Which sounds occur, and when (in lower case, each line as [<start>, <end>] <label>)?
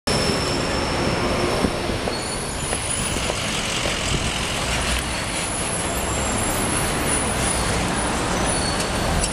[0.00, 2.42] tire squeal
[0.00, 9.32] traffic noise
[2.65, 2.75] generic impact sounds
[3.04, 3.10] generic impact sounds
[3.22, 3.30] generic impact sounds
[4.88, 5.46] tire squeal
[5.75, 6.77] tire squeal
[7.38, 7.76] tire squeal
[8.30, 9.07] tire squeal
[8.74, 8.84] generic impact sounds
[9.20, 9.28] generic impact sounds